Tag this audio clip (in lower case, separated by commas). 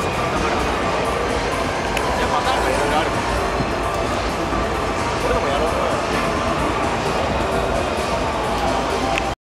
music, speech, vehicle